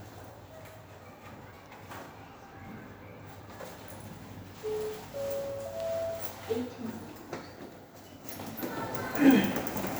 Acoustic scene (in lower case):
elevator